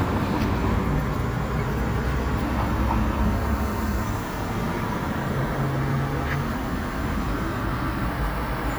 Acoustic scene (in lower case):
street